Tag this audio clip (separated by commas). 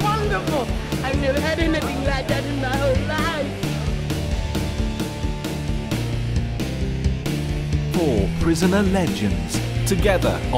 Speech, Music